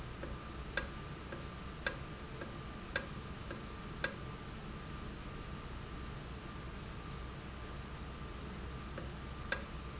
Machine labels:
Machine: valve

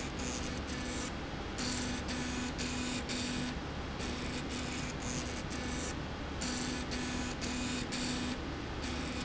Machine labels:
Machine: slide rail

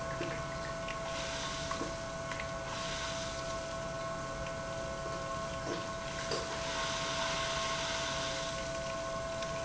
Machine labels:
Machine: pump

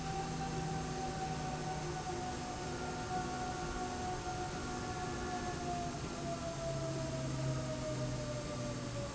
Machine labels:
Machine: slide rail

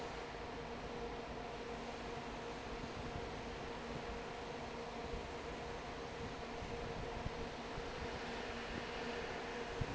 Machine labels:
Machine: fan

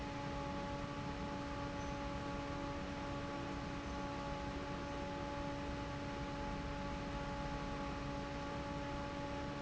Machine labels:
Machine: fan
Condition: normal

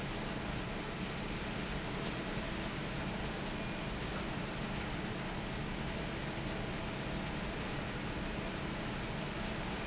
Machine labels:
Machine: fan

